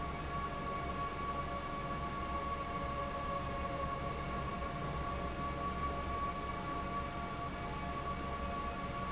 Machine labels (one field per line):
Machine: fan